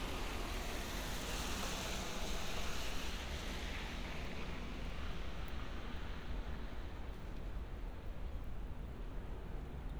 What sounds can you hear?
background noise